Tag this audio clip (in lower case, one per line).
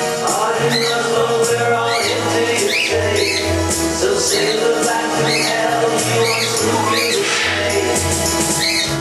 domestic animals
music